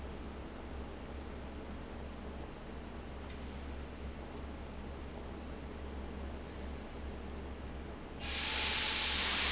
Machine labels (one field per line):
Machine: fan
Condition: abnormal